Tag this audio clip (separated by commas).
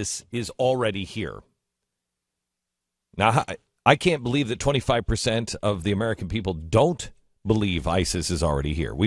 Male speech, monologue, Speech